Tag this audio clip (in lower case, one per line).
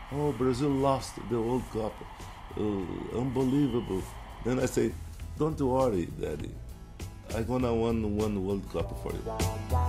speech
music